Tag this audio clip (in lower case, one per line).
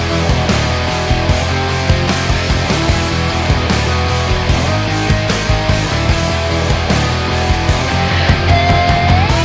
music
progressive rock